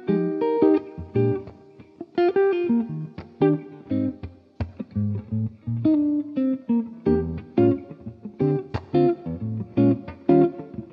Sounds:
Plucked string instrument, Guitar, Music, Strum, Acoustic guitar, Musical instrument

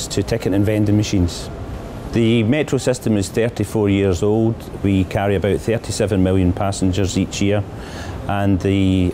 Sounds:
Speech

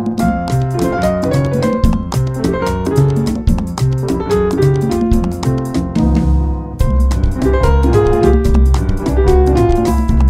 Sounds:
Theme music, Music, Happy music

